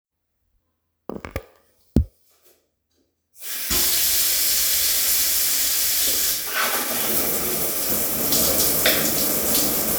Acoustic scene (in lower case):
restroom